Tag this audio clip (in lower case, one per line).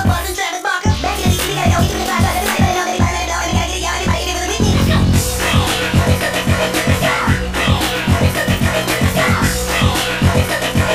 music